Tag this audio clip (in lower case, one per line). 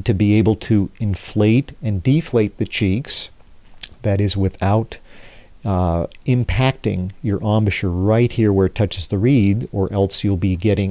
speech